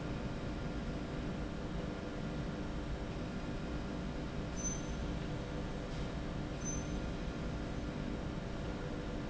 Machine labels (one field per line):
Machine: slide rail